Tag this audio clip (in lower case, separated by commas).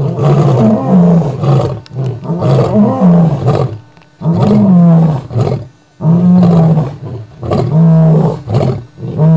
lions roaring